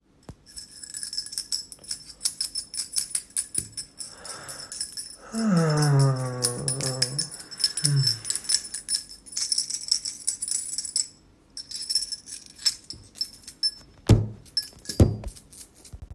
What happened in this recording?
I starting shaking the keyachain and then breathed heavily. I also hit the desk at the end. I was shaking the key chain the whole time